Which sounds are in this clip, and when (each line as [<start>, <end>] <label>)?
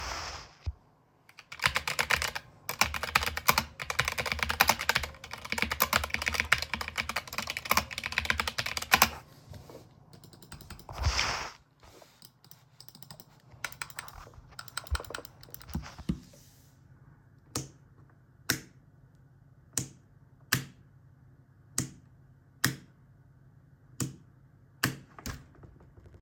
[1.39, 9.28] keyboard typing
[17.49, 17.74] light switch
[18.37, 18.71] light switch
[19.69, 19.93] light switch
[20.33, 20.79] light switch
[21.71, 22.01] light switch
[22.54, 22.89] light switch
[23.88, 24.23] light switch
[24.78, 25.48] light switch